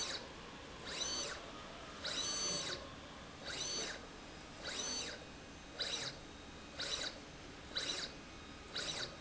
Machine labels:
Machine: slide rail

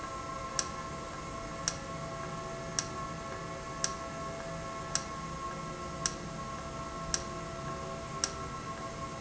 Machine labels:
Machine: valve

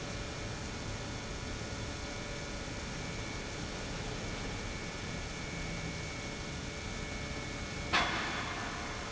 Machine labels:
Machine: pump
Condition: normal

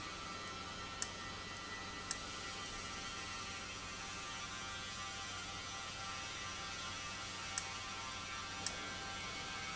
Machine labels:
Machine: valve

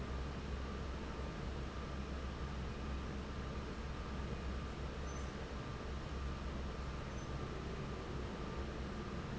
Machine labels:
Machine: fan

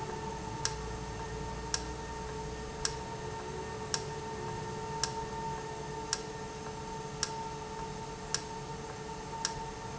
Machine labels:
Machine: valve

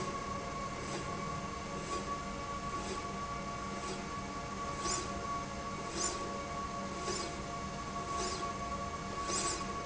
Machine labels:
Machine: slide rail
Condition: normal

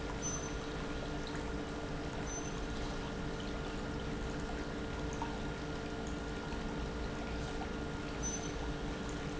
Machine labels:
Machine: pump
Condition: normal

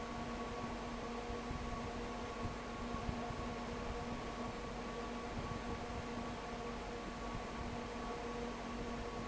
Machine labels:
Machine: fan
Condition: abnormal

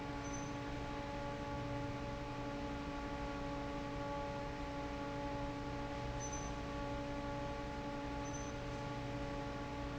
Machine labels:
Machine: fan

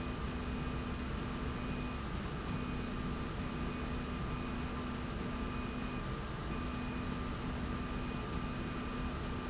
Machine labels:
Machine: slide rail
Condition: normal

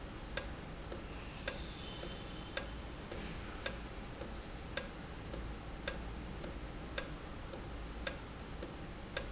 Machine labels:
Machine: valve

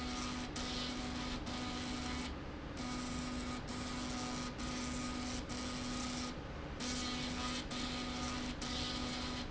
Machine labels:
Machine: slide rail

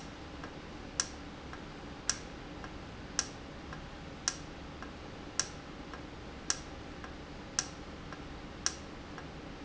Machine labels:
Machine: valve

